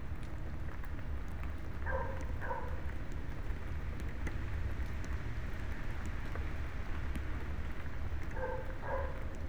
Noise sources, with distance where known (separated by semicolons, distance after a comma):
dog barking or whining, far